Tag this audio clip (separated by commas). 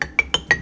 Mallet percussion, xylophone, Percussion, Musical instrument, Music